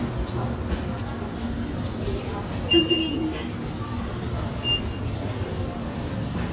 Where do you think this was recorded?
in a subway station